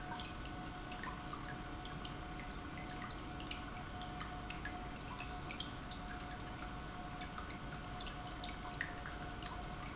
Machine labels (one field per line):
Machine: pump